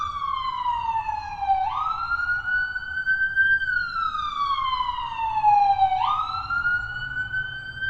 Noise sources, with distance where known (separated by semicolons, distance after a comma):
siren, near